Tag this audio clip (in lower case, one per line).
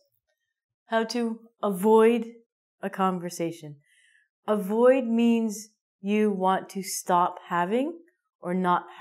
speech